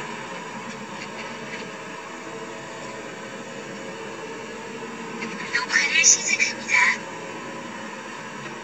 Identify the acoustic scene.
car